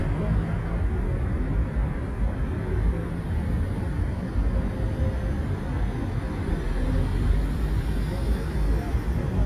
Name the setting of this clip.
street